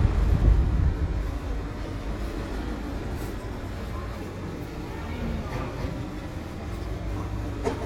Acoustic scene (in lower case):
residential area